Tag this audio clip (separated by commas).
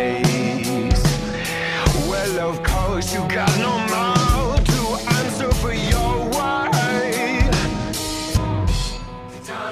Music